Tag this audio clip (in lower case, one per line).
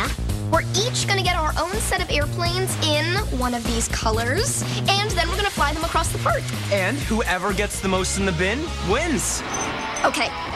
speech
music